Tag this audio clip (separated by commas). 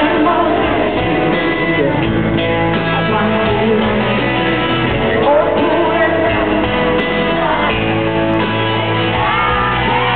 Music